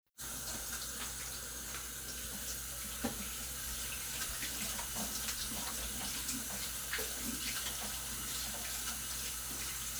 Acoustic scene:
kitchen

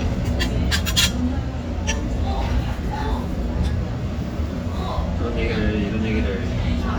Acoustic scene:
restaurant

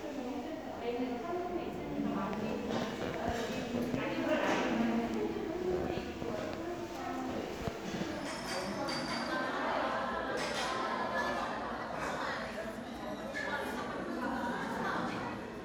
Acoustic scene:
crowded indoor space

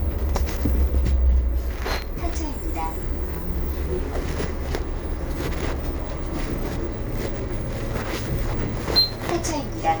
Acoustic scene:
bus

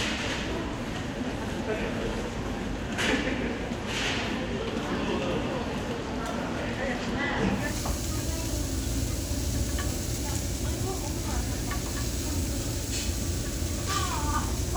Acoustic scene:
crowded indoor space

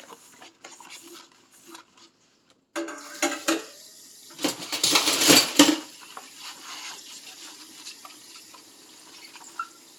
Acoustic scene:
kitchen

